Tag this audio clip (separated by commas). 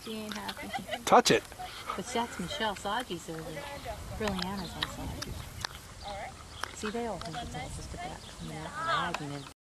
Speech